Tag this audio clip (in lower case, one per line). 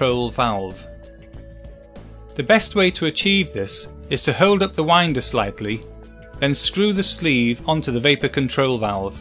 speech
music
sampler